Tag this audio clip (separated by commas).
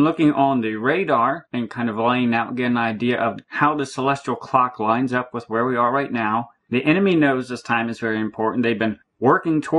Speech